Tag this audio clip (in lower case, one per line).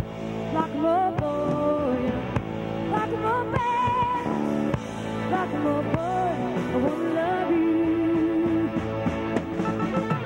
rock and roll
roll
music